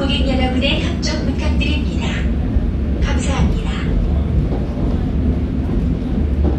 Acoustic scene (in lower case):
subway train